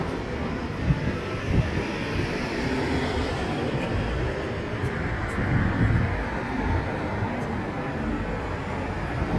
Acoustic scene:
street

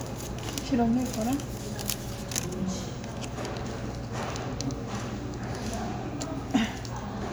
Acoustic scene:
cafe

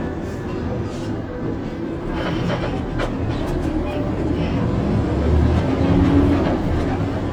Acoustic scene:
bus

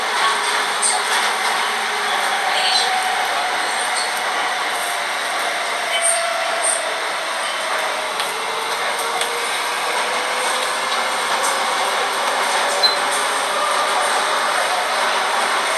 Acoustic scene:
subway train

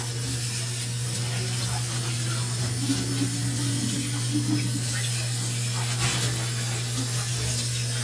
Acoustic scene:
kitchen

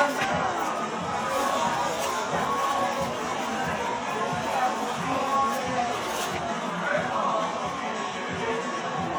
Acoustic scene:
cafe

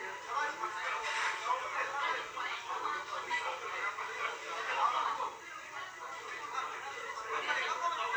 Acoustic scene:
restaurant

